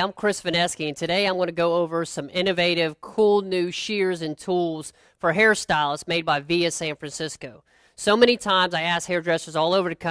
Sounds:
speech

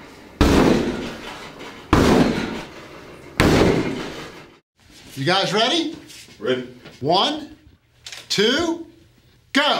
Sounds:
speech

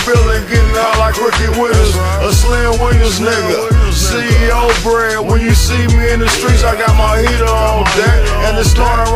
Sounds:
music

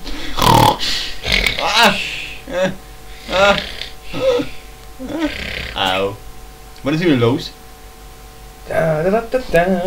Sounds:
speech

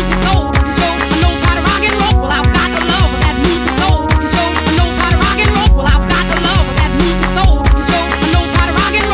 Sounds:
music

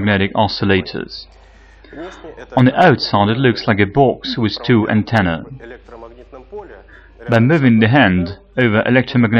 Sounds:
speech

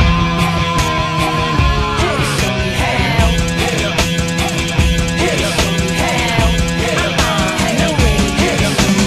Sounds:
music, progressive rock

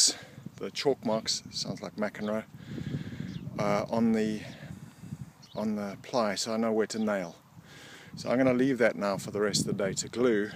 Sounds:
speech

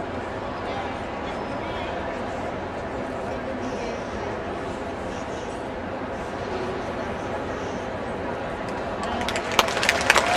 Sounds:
speech

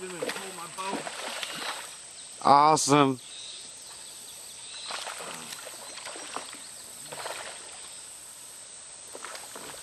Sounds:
boat, vehicle, speech

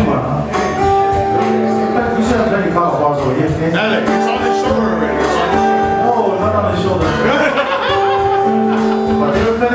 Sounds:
music, speech

